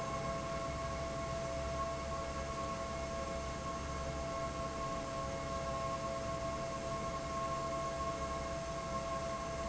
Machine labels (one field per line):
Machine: fan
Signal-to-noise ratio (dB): -6 dB